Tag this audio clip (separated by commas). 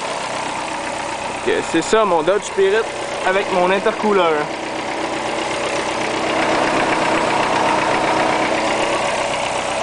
Car, Engine, Heavy engine (low frequency), Idling, Vehicle, Speech